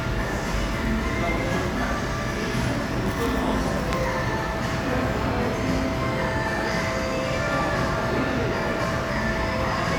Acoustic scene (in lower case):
cafe